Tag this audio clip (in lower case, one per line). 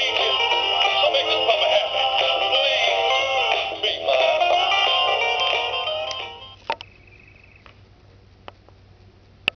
music